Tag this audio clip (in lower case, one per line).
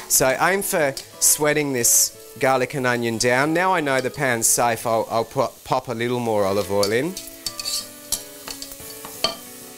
stir
sizzle